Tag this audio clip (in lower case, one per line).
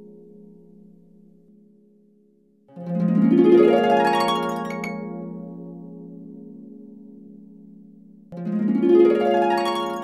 music